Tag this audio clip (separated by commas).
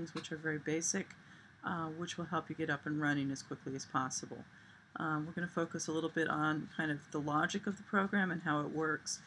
Speech